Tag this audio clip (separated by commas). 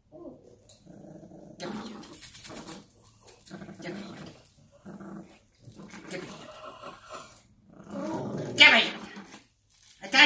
dog growling